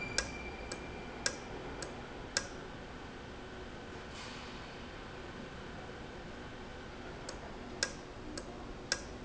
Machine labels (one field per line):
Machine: valve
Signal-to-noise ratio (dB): 0 dB